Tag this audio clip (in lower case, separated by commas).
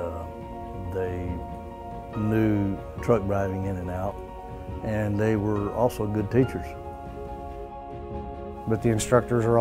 speech, music